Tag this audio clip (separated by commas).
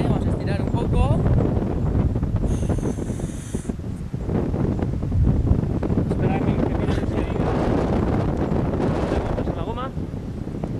Speech